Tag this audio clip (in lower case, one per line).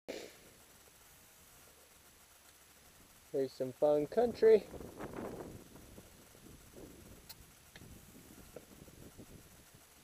outside, rural or natural
speech